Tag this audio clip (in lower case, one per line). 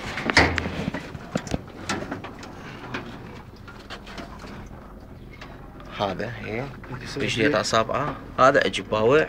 speech